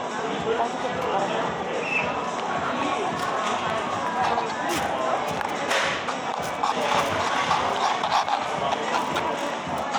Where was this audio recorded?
in a cafe